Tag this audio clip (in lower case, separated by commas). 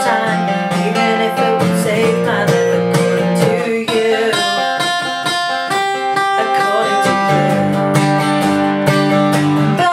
tapping (guitar technique), singing